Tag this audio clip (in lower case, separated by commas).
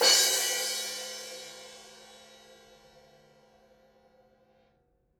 cymbal, percussion, music, crash cymbal, musical instrument